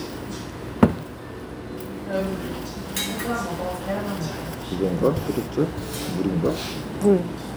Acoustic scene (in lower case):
restaurant